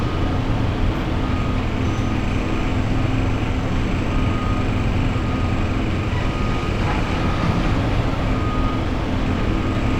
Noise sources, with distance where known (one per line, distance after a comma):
reverse beeper, near